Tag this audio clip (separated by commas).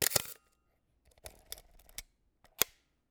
Mechanisms, Camera